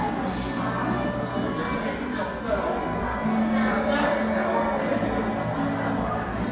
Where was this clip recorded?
in a crowded indoor space